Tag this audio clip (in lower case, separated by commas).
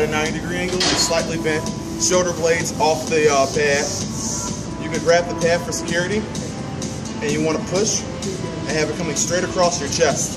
music, speech